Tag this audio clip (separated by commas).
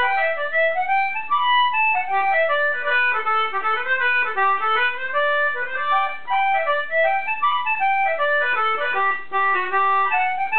Music, Musical instrument, Accordion